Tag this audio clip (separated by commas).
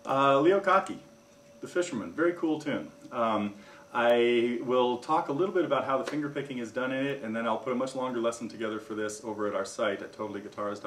Speech